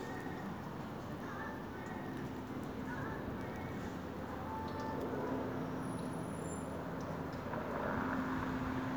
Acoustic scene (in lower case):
street